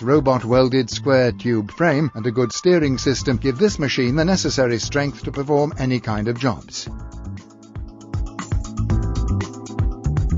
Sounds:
Speech, Music

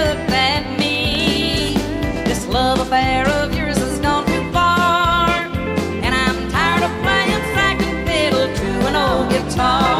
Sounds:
Music, Musical instrument

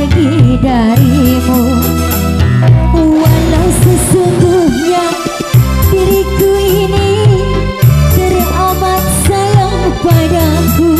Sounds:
Wedding music, Music

